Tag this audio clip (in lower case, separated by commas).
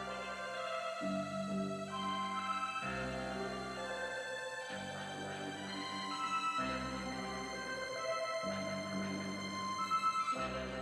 musical instrument, music, inside a large room or hall